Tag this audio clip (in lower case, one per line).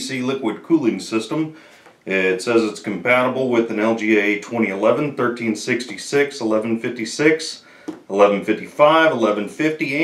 speech